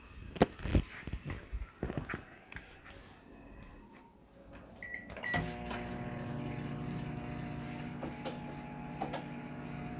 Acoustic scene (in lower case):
kitchen